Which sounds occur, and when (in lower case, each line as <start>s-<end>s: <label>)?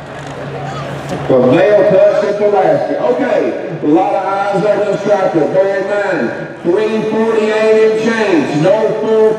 0.0s-9.3s: motor vehicle (road)
0.2s-0.9s: human voice
1.0s-1.2s: generic impact sounds
1.2s-3.6s: man speaking
2.0s-2.4s: human voice
2.5s-2.9s: human voice
3.8s-6.4s: man speaking
4.4s-5.3s: human voice
6.6s-9.3s: man speaking
7.2s-7.9s: human voice